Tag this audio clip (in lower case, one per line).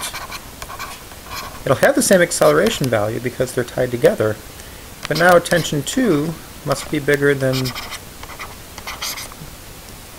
speech